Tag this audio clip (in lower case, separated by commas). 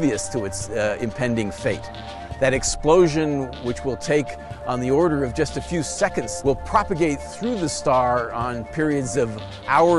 speech, music